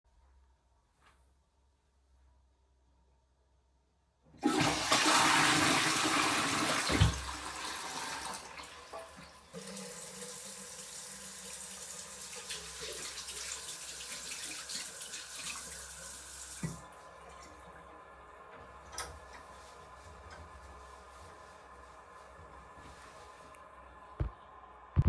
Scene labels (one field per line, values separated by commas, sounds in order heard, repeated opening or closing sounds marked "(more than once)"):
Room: bathroom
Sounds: toilet flushing, running water